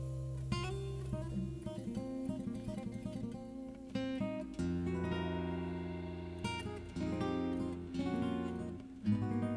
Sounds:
music, plucked string instrument, guitar, musical instrument

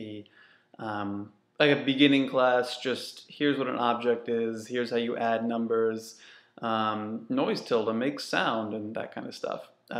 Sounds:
speech

